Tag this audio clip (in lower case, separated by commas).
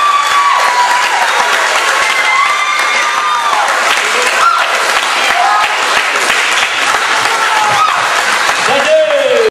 speech